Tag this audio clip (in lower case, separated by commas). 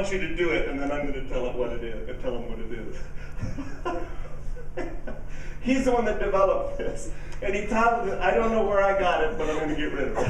inside a large room or hall, speech